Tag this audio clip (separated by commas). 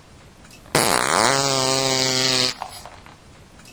Fart